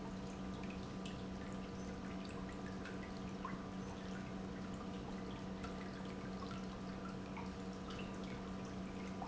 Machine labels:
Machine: pump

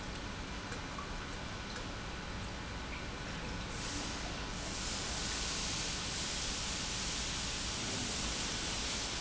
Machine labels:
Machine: pump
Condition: normal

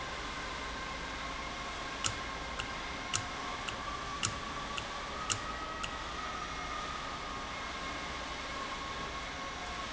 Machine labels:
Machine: valve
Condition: normal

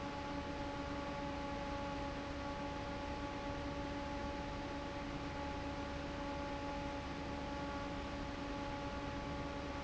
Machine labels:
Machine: fan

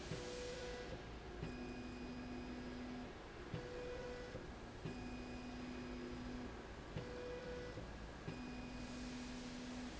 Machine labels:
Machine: slide rail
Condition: normal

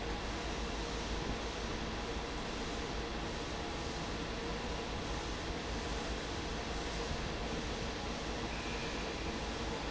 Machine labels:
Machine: fan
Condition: normal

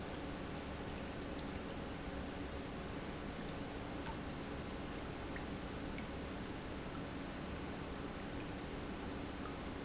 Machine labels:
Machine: pump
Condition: normal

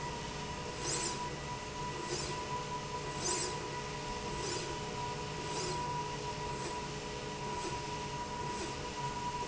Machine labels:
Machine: slide rail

